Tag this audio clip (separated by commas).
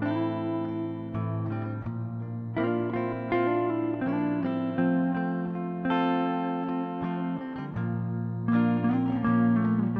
Guitar, Plucked string instrument, Music, Strum, Musical instrument